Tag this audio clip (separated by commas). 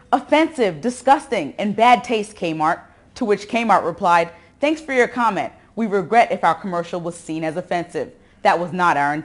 Speech